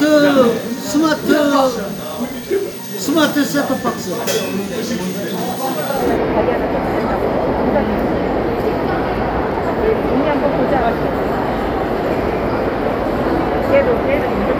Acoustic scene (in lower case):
crowded indoor space